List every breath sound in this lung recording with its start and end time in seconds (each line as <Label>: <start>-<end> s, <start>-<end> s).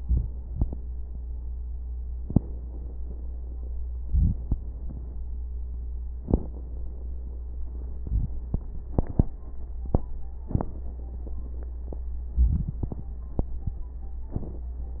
Inhalation: 4.01-4.39 s, 8.02-8.40 s, 12.34-12.84 s
Crackles: 12.34-12.84 s